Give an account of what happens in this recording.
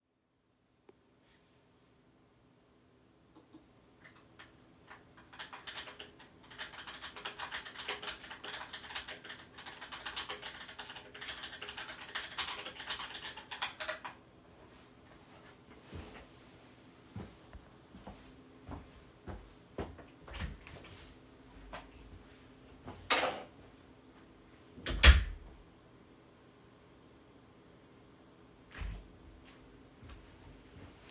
Whilst sitting in my chair, I started typing something on my keyboard. After that I stood up, walked toward the door, opened it, walked out and closed it again.